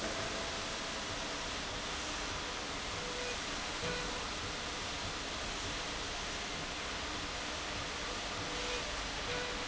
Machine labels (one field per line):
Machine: slide rail